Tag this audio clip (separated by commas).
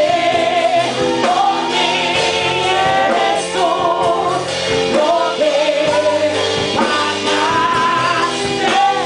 Music, Female singing